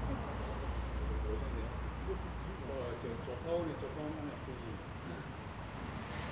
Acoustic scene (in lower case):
residential area